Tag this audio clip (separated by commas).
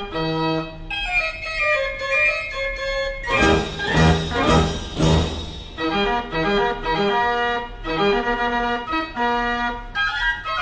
Electronic organ, Organ